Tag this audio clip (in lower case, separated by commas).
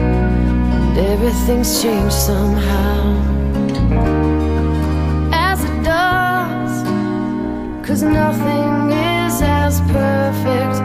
music